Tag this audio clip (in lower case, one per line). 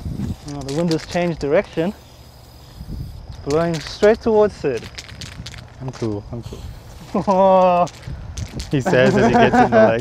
spray
speech